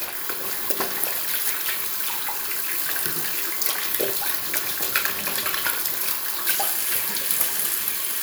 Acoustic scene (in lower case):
restroom